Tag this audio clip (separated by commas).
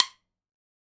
Wood